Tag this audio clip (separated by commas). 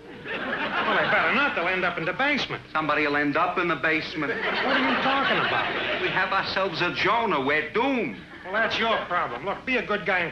Speech